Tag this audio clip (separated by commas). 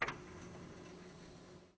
Mechanisms, Printer